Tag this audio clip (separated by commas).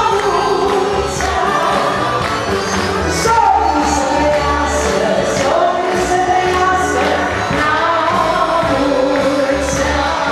Music, Orchestra